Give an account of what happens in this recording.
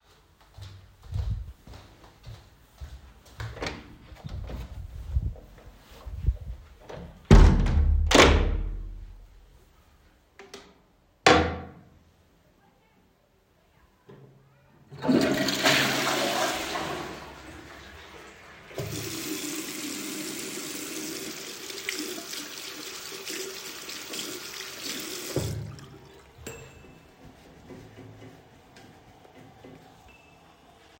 I walked into the bathroom and opened and closed the door. After a short pause, I used the toilet flush. Then I turned on the tap and washed my hands for a moment.